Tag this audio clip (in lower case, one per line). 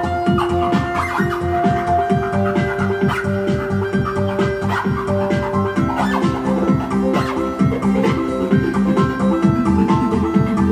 music